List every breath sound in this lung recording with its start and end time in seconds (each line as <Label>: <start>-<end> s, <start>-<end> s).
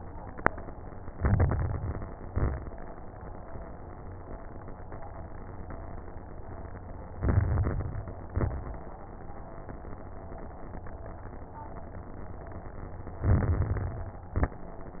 Inhalation: 1.08-2.12 s, 7.12-8.17 s, 13.21-14.25 s
Exhalation: 2.22-2.72 s, 8.28-8.60 s, 14.35-14.66 s
Crackles: 1.08-2.12 s, 2.22-2.72 s, 7.12-8.17 s, 8.28-8.60 s, 13.21-14.25 s, 14.35-14.66 s